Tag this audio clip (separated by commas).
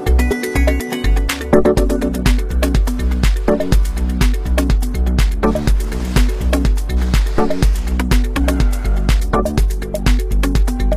Car, Skidding, Music, Motor vehicle (road), Vehicle